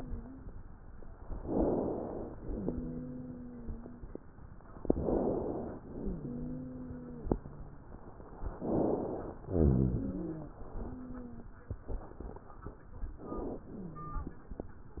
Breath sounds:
0.00-0.49 s: wheeze
1.39-2.37 s: inhalation
2.48-4.14 s: exhalation
2.48-4.14 s: wheeze
4.84-5.83 s: inhalation
5.92-7.69 s: exhalation
5.92-7.69 s: wheeze
8.46-9.45 s: inhalation
9.52-11.42 s: exhalation
9.52-11.42 s: wheeze
13.62-14.48 s: wheeze

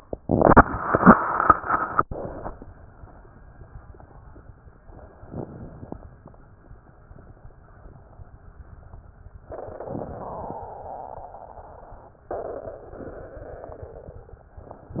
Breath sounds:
5.28-6.02 s: inhalation
5.28-6.02 s: crackles
9.89-10.63 s: inhalation
9.89-10.63 s: crackles

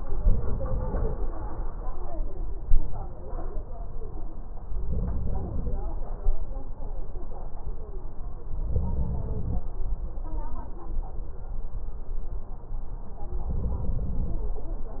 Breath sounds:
0.14-1.17 s: inhalation
4.83-5.86 s: crackles
4.84-5.87 s: inhalation
8.61-9.64 s: inhalation
8.61-9.64 s: crackles
13.44-14.47 s: inhalation
13.45-14.48 s: crackles

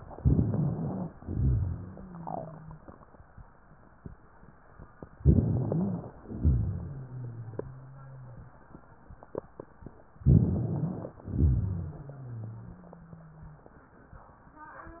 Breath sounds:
0.10-1.09 s: crackles
0.12-1.11 s: inhalation
1.16-2.79 s: exhalation
1.28-2.79 s: wheeze
5.16-6.14 s: crackles
5.18-6.17 s: inhalation
6.20-8.37 s: exhalation
6.44-8.47 s: wheeze
10.20-11.18 s: crackles
10.22-11.18 s: inhalation
11.24-13.65 s: exhalation
11.62-13.65 s: wheeze

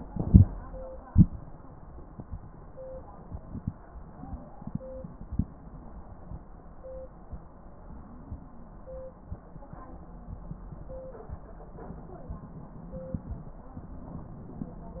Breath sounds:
7.84-9.61 s: wheeze

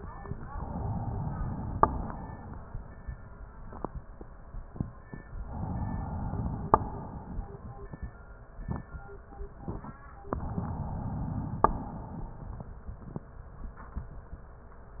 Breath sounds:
0.46-1.77 s: inhalation
1.77-2.83 s: exhalation
5.43-6.74 s: inhalation
6.74-7.95 s: exhalation
10.36-11.73 s: inhalation
11.73-12.71 s: exhalation

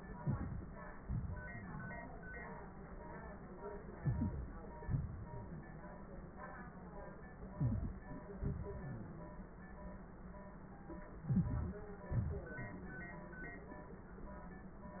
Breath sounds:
0.06-0.69 s: inhalation
0.95-2.32 s: exhalation
4.00-4.76 s: inhalation
4.90-6.04 s: exhalation
7.57-8.26 s: inhalation
8.35-9.43 s: exhalation
11.20-11.86 s: inhalation
12.14-13.19 s: exhalation

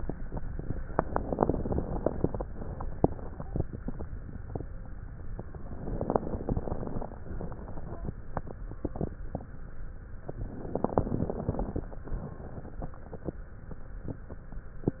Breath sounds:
0.84-2.45 s: crackles
0.86-2.45 s: inhalation
2.48-3.96 s: exhalation
2.48-3.96 s: crackles
5.76-7.23 s: inhalation
5.76-7.25 s: crackles
7.29-9.15 s: exhalation
7.29-9.15 s: crackles
10.32-11.80 s: inhalation
10.32-11.82 s: crackles
11.89-13.43 s: exhalation
11.89-13.43 s: crackles

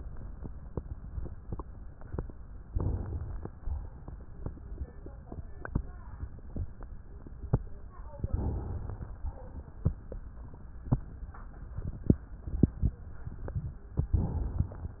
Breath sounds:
2.66-3.49 s: inhalation
3.61-4.12 s: exhalation
8.23-9.07 s: inhalation
9.32-9.83 s: exhalation
14.15-14.99 s: inhalation

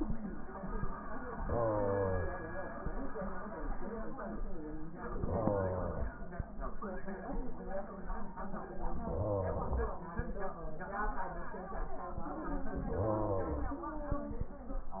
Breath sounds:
1.29-2.82 s: inhalation
5.14-6.25 s: inhalation
8.94-10.05 s: inhalation
12.77-13.88 s: inhalation

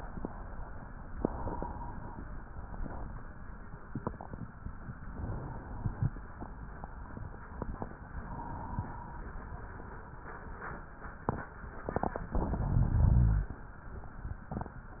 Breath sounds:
1.15-2.30 s: inhalation
5.08-6.23 s: inhalation
8.18-9.32 s: inhalation
12.32-13.47 s: inhalation

